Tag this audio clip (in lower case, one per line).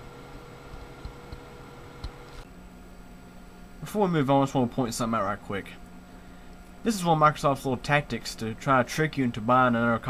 speech